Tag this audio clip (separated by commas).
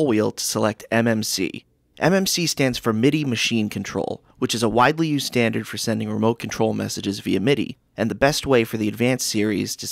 Speech